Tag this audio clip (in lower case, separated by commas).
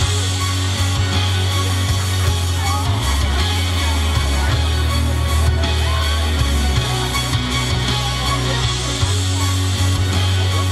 speech, music